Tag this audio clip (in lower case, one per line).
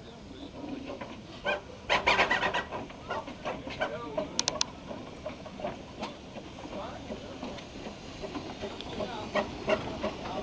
rail transport
speech
train wagon
vehicle
train